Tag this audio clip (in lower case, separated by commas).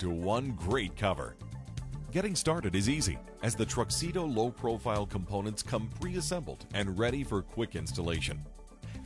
music, speech